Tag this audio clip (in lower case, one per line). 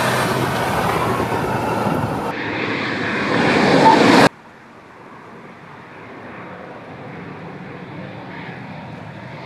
flap
hubbub
rustle